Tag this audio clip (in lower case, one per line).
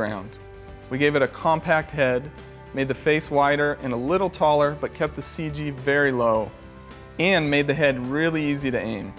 speech
music